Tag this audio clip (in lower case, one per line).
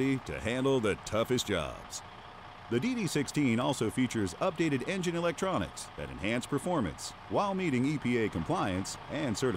speech
heavy engine (low frequency)